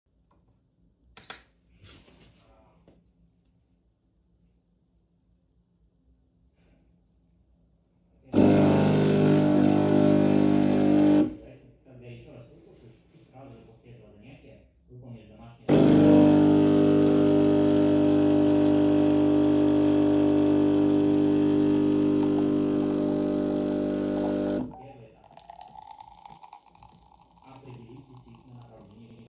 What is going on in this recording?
I press the button on a capsule coffee machine to start brewing espresso. While the machine is operating, water flows inside the machine. A conversation is audible in the background from another room. The coffee machine sound overlaps with the background speech. Slightly overlap